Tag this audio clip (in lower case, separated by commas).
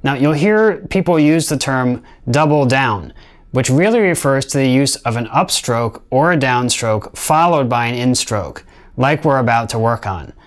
speech